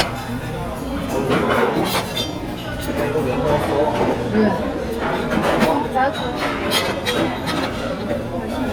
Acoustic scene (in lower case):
crowded indoor space